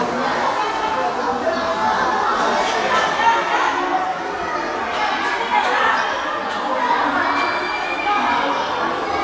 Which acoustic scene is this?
crowded indoor space